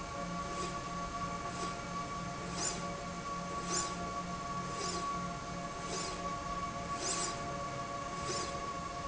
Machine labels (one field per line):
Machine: slide rail